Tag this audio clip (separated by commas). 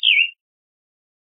Bird, Wild animals, Animal